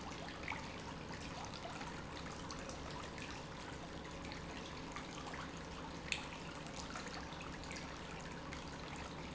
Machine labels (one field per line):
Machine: pump